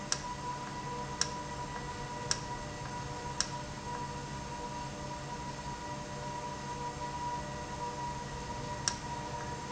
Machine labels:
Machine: valve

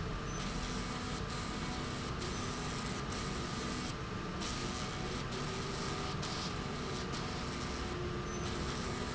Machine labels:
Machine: slide rail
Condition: abnormal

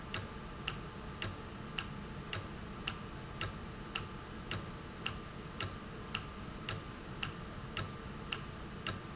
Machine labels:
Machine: valve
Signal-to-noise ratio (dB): 0 dB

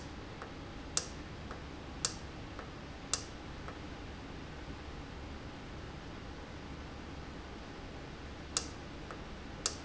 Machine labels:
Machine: valve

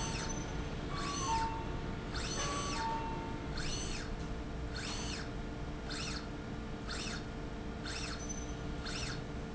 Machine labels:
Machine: slide rail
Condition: normal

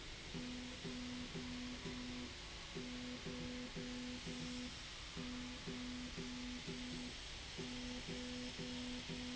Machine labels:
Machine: slide rail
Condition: normal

